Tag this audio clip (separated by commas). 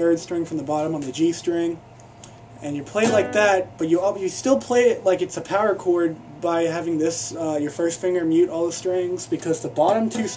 Guitar, Music, Musical instrument, Speech, Plucked string instrument